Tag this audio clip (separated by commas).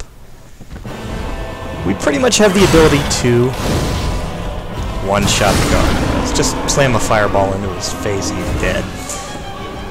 Speech, Music